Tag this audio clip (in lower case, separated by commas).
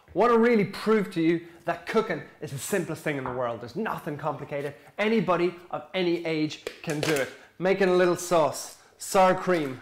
speech